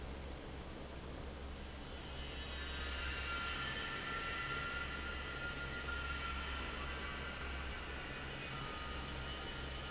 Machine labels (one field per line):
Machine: fan